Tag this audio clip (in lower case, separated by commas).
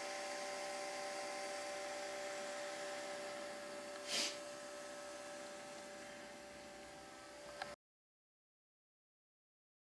white noise